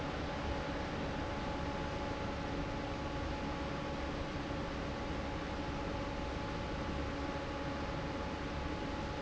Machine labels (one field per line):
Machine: fan